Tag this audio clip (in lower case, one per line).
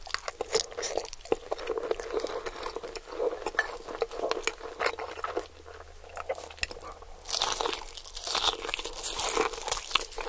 people eating noodle